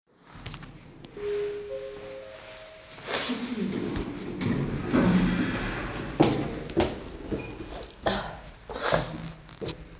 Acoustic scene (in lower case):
elevator